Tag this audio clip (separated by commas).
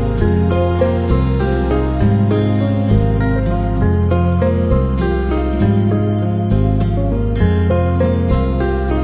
Music